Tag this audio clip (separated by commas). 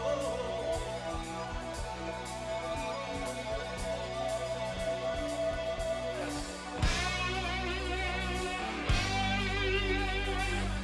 Rock and roll, Singing